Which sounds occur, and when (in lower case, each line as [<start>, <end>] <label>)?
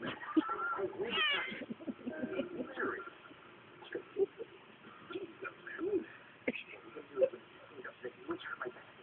[0.00, 0.28] human voice
[0.00, 9.02] mechanisms
[0.00, 9.02] television
[0.03, 3.49] laughter
[0.64, 1.52] male speech
[1.43, 2.04] cat
[2.51, 3.06] music
[3.06, 3.51] male speech
[4.26, 4.88] male speech
[4.36, 4.91] laughter
[5.23, 5.62] music
[5.45, 6.47] male speech
[6.18, 6.46] laughter
[6.90, 7.82] laughter
[6.90, 9.02] male speech
[7.19, 8.16] music